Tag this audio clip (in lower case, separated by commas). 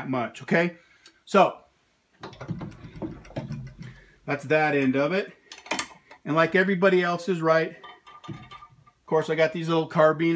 mechanisms